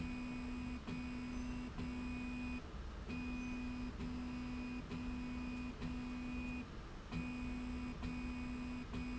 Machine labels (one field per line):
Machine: slide rail